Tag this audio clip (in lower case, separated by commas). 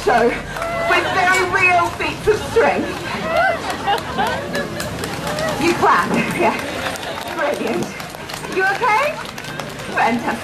speech, outside, urban or man-made